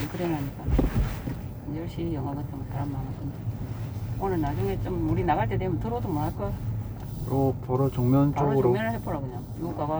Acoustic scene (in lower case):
car